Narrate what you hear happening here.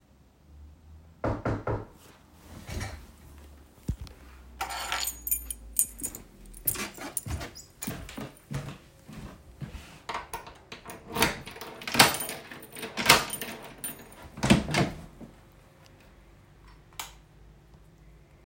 Door knocked, I picked up keys, and walked to the door. Then I inserted keys, opened the door, and turned on light.